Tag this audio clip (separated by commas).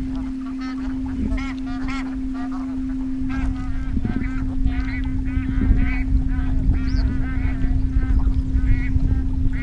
goose honking